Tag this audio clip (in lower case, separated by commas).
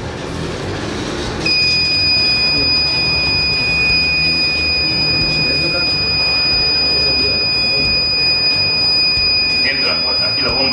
smoke detector beeping